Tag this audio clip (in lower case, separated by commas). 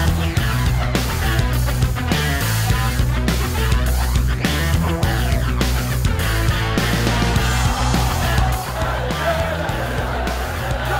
music, crowd